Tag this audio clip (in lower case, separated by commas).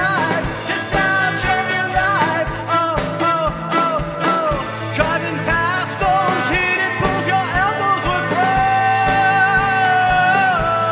music, cello, musical instrument